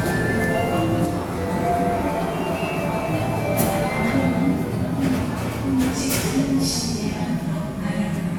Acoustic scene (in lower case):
subway station